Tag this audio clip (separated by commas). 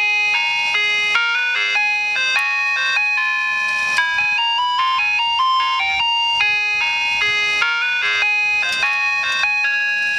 Music